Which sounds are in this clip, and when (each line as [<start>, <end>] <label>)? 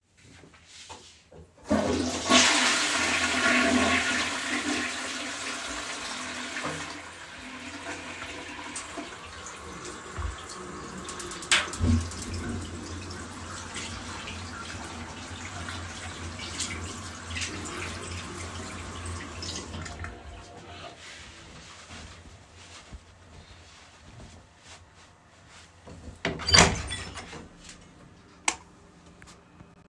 [1.51, 7.90] toilet flushing
[5.48, 21.00] running water
[26.18, 27.63] door
[28.27, 28.84] light switch